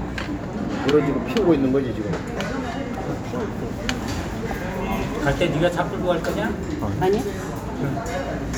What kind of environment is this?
restaurant